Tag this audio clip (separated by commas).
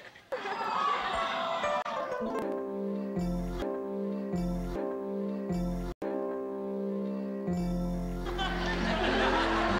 Music, Sound effect